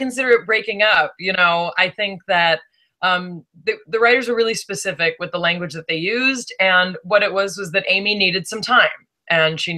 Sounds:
speech

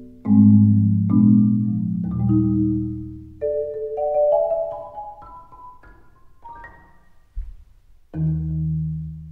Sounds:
xylophone, mallet percussion, glockenspiel

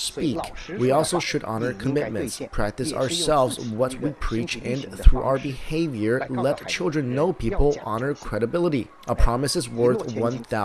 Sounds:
speech

